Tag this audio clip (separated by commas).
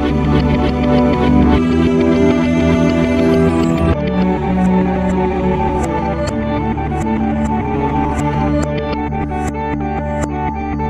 Ambient music